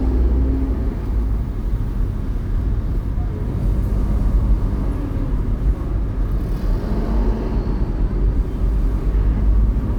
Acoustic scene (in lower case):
car